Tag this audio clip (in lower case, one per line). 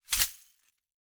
glass